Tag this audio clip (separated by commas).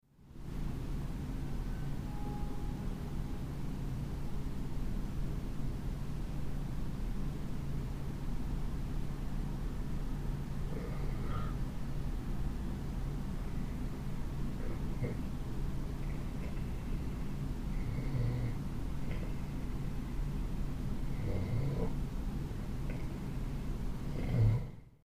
Rail transport, Vehicle, Train